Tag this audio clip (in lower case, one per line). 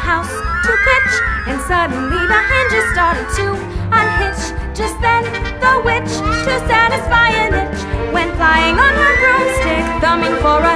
singing
music